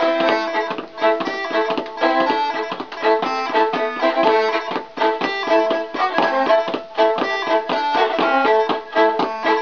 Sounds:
Violin, playing violin, Musical instrument, Music

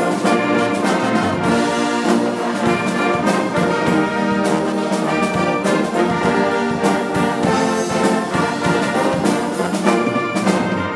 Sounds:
Brass instrument, playing trombone, Trumpet, Trombone

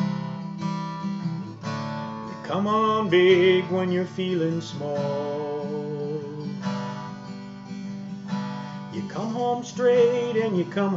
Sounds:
Music

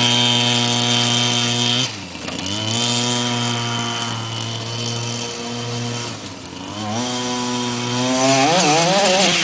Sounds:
Vehicle

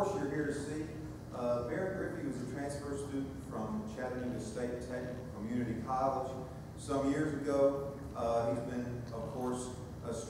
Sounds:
Speech

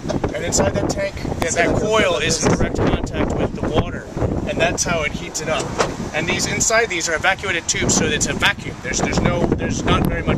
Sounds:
Speech

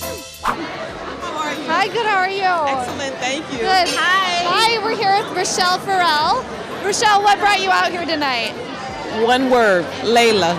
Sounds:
Speech

